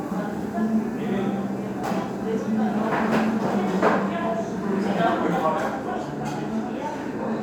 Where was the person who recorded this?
in a restaurant